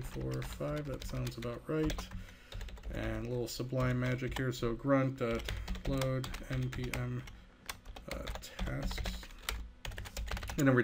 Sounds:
speech, computer keyboard, typing

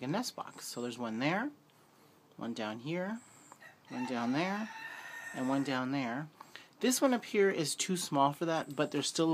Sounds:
chicken, speech

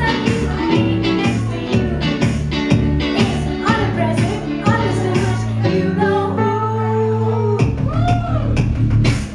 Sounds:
music, singing

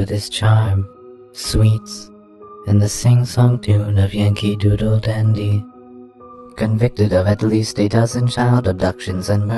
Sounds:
speech, music

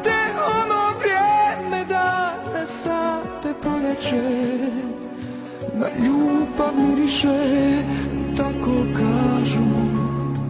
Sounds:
music

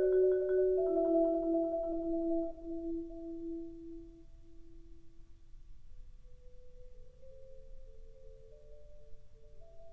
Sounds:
vibraphone, playing vibraphone, musical instrument, music

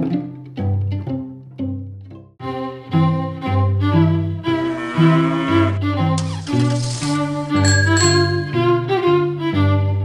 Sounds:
animal, music

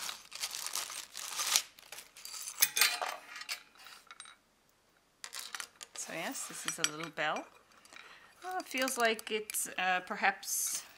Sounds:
speech

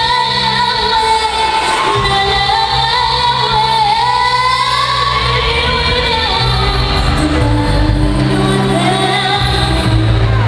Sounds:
child singing, music

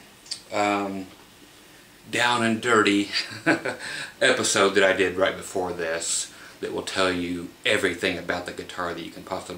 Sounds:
speech

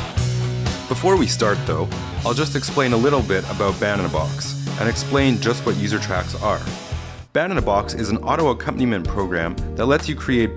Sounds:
speech, music

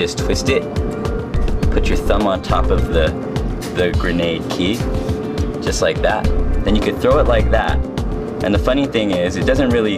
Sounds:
music, speech

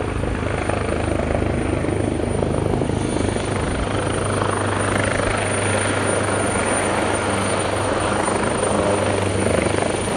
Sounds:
vehicle, helicopter

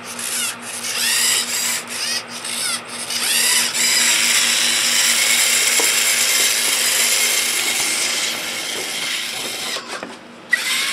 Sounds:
inside a small room

